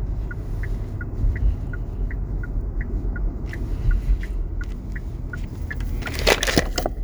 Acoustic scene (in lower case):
car